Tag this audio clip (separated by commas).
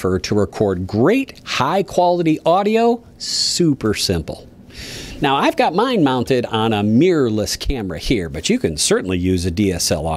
Speech